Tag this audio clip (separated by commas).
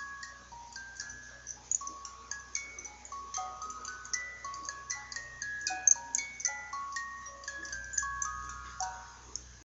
Music